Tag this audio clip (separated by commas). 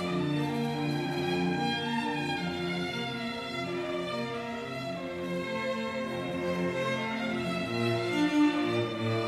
Music, fiddle, Musical instrument, Cello